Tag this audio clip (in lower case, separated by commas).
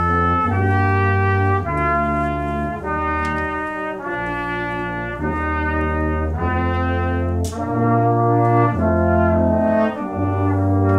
french horn, trumpet, brass instrument, music